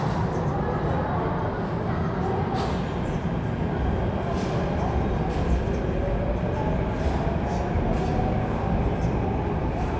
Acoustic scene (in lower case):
subway station